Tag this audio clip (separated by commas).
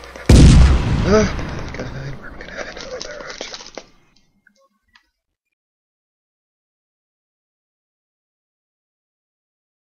Speech, Run